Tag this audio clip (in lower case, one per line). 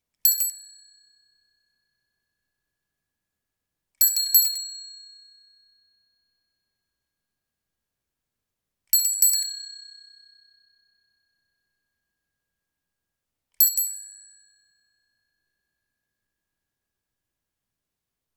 vehicle
bicycle